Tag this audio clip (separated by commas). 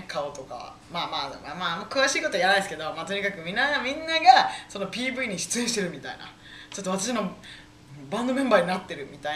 Speech